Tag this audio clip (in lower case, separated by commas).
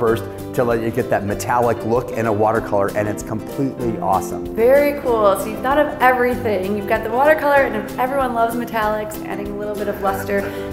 music, speech